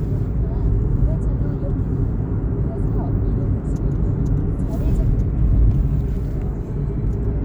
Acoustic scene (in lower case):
car